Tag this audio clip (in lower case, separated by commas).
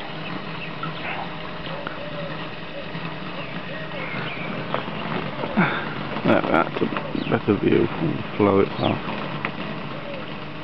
dove, speech